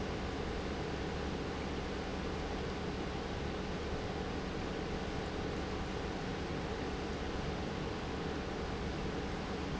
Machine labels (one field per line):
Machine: pump